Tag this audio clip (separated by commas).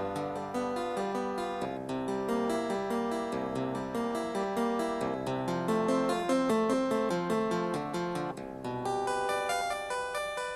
playing harpsichord